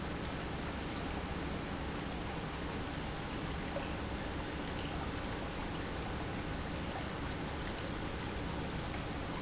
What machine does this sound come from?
pump